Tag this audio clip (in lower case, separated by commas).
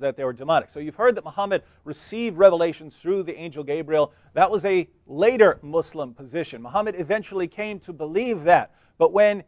speech